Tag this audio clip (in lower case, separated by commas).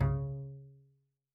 music, musical instrument, bowed string instrument